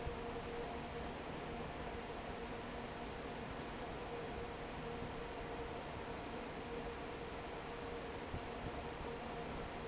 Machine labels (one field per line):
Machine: fan